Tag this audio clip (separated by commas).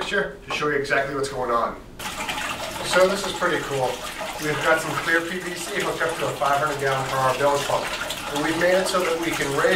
Speech, Drip, Water, inside a small room